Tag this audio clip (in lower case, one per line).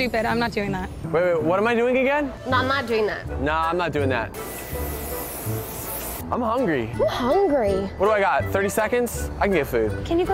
speech
music